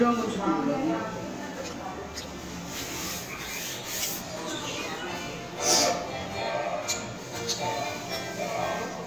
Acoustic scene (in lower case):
restaurant